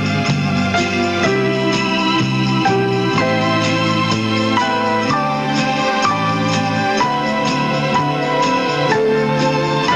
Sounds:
jingle bell

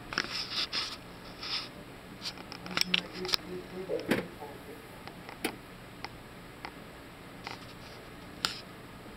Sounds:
patter

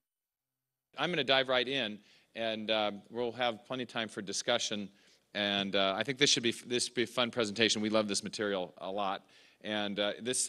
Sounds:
speech

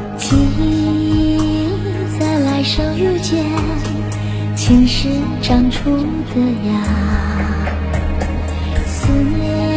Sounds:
music

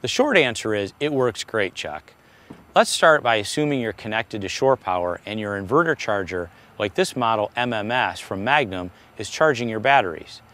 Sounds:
speech

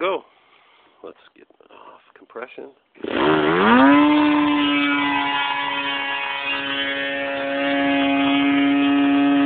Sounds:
speech

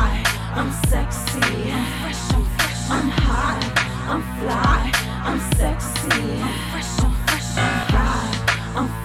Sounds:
music, speech

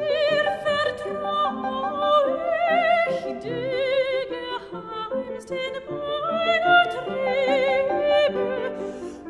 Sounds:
zither, pizzicato

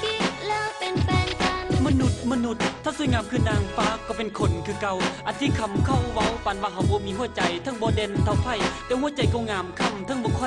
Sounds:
happy music, music

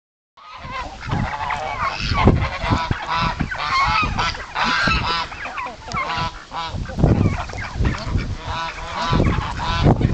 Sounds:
duck, bird, goose

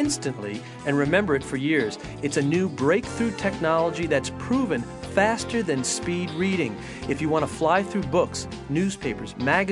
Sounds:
music, speech

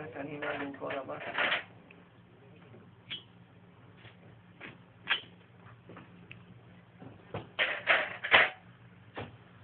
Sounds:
speech

